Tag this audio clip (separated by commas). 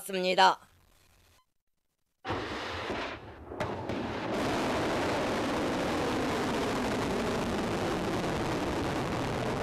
missile launch